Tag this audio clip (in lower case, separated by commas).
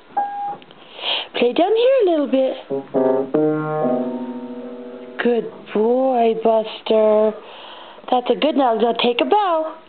piano, music